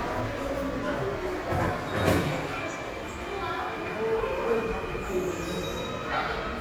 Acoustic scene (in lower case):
subway station